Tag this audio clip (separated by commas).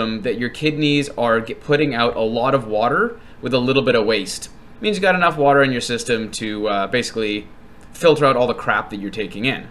Speech